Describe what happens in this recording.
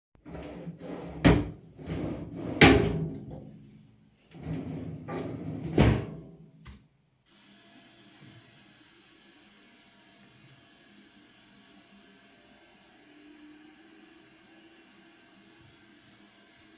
I reach over to open and then close a wardrobe drawer to put away a stray item. Afterwhich i begin vacuuming the floor.